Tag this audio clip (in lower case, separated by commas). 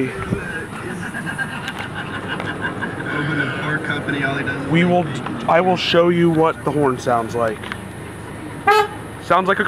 speech, toot